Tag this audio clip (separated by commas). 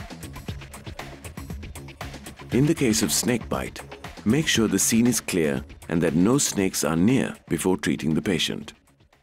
Speech, Music